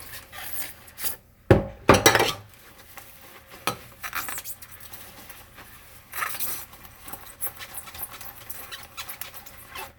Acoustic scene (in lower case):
kitchen